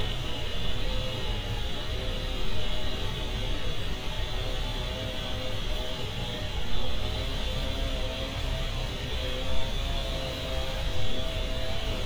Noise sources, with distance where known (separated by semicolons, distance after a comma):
chainsaw, near